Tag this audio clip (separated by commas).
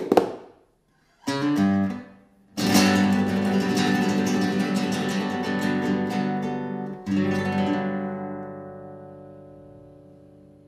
Guitar, Plucked string instrument, Musical instrument, Acoustic guitar, Music